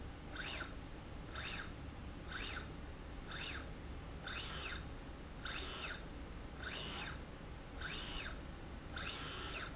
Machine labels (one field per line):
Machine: slide rail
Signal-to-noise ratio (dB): 6 dB